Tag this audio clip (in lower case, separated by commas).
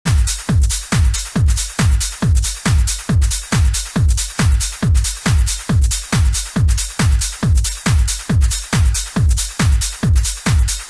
music, techno